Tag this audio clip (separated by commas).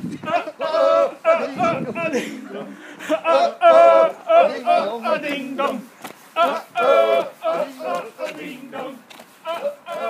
Speech